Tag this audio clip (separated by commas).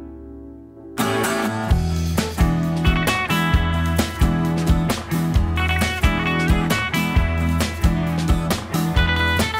Soundtrack music, Music